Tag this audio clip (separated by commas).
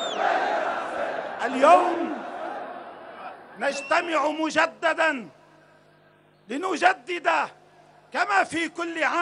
Speech